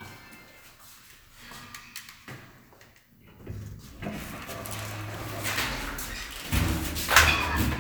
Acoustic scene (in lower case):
elevator